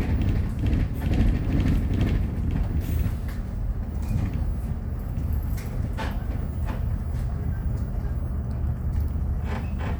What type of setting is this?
bus